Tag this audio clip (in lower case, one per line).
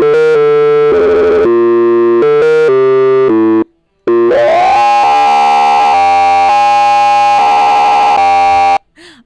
music
synthesizer
musical instrument